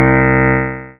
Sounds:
music
musical instrument
piano
keyboard (musical)

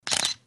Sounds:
mechanisms
camera

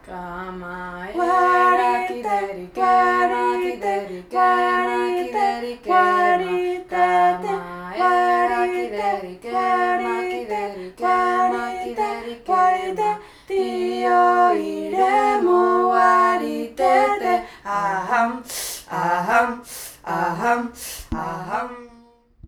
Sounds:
human voice
singing

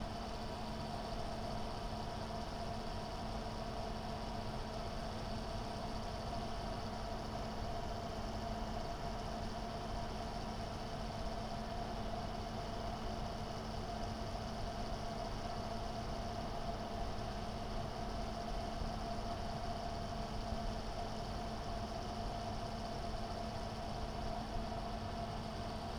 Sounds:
mechanisms
mechanical fan

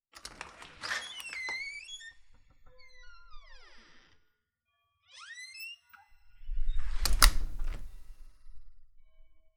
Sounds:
domestic sounds
slam
door

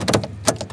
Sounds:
motor vehicle (road)
car
vehicle

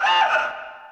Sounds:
alarm

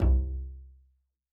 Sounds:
bowed string instrument
music
musical instrument

